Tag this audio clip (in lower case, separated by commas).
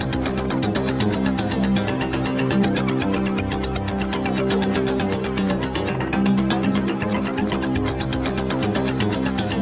theme music, music